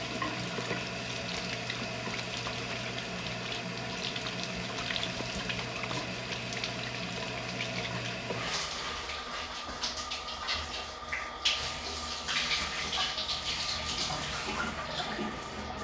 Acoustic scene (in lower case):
restroom